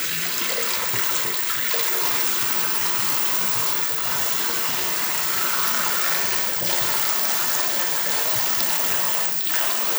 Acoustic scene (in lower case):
restroom